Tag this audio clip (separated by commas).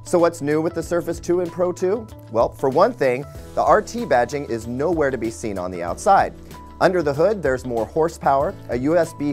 Music, Speech